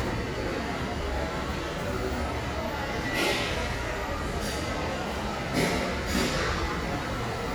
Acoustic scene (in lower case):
restaurant